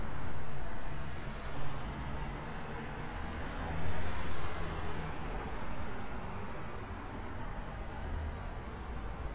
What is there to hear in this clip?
medium-sounding engine